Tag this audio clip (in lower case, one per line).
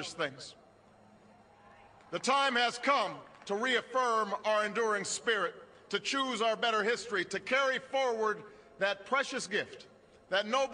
speech
monologue
man speaking